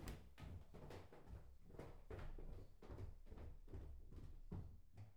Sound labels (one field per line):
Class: footsteps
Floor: wooden floor